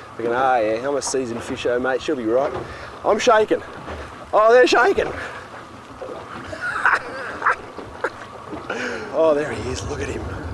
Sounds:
Speech, outside, rural or natural

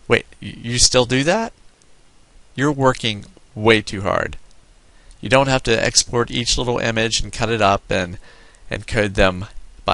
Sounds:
Speech

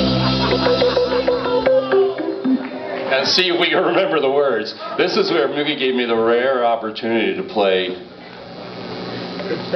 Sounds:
Speech, Music

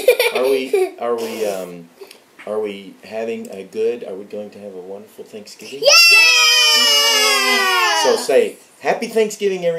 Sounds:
Belly laugh

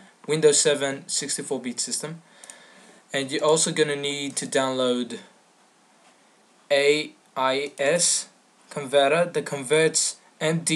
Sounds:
Speech

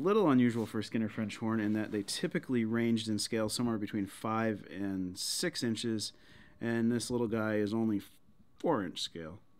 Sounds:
Speech

